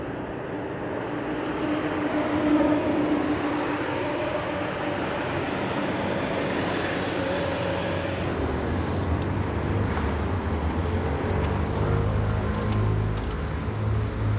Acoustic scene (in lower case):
street